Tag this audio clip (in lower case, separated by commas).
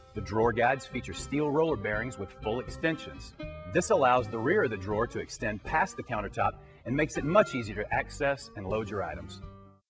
speech